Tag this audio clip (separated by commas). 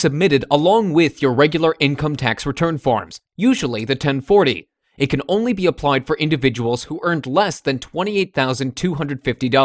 Speech